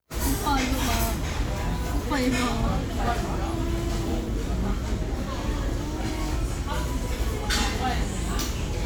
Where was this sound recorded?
in a restaurant